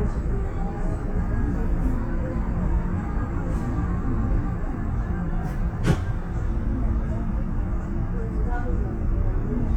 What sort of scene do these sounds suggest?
bus